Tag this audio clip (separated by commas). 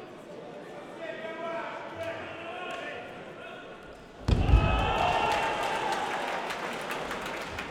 Applause, Human group actions, Cheering